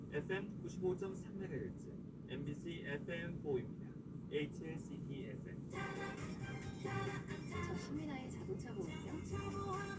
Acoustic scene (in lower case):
car